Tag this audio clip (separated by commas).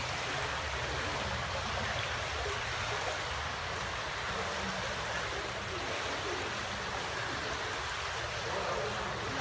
swimming